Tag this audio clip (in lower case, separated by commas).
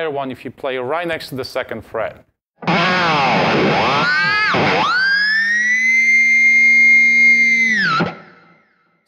inside a small room, speech, guitar, plucked string instrument, musical instrument, music, heavy metal